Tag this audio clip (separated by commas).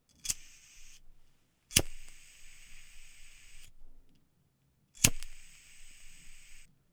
Fire